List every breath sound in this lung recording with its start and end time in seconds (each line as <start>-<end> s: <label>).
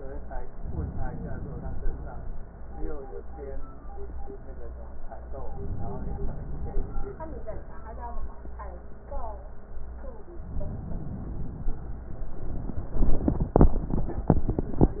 0.60-2.17 s: inhalation
5.34-6.75 s: inhalation
6.75-7.55 s: exhalation
10.36-11.77 s: inhalation
11.75-12.29 s: exhalation